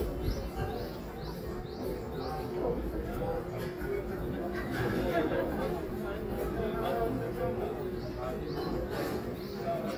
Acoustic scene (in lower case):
residential area